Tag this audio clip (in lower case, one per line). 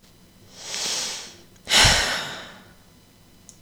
sigh
respiratory sounds
human voice
breathing